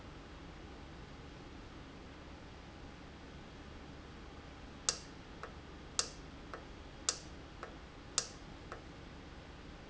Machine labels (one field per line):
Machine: valve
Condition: normal